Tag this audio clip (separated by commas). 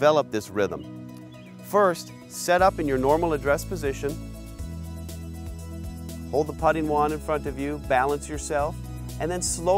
Speech, Music